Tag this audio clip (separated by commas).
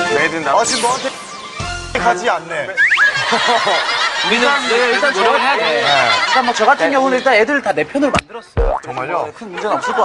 Speech, Music